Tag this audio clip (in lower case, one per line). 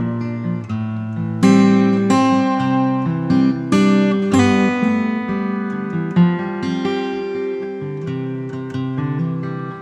strum
guitar
acoustic guitar
musical instrument
plucked string instrument
music